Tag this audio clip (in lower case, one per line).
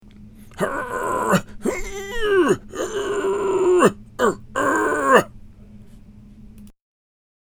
human voice